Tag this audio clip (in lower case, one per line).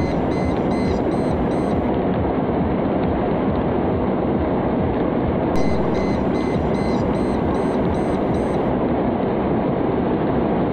engine
vehicle